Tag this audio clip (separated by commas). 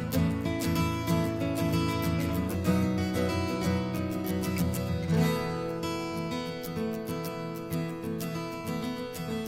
Music